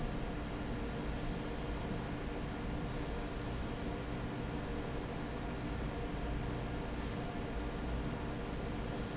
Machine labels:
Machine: fan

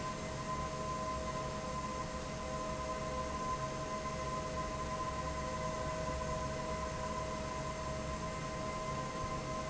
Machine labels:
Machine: fan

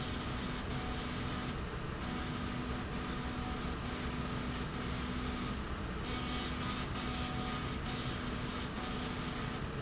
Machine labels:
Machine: slide rail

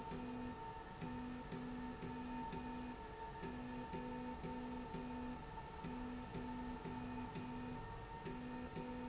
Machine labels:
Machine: slide rail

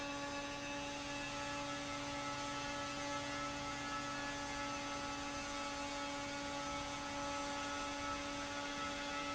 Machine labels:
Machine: fan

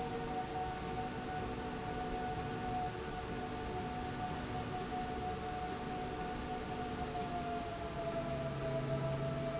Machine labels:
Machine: slide rail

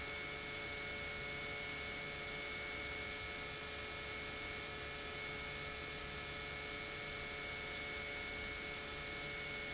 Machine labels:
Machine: pump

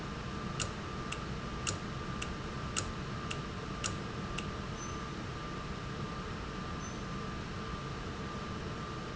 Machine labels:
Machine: valve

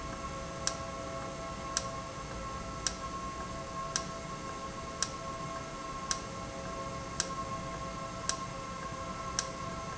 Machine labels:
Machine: valve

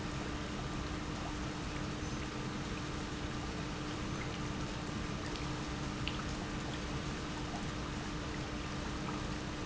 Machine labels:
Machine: pump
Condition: normal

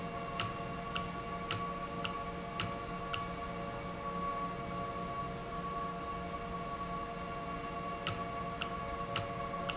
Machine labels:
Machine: valve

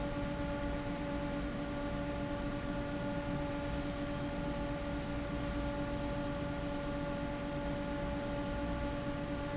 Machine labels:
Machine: fan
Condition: abnormal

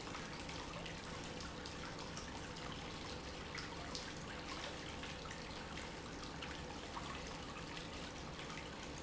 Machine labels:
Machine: pump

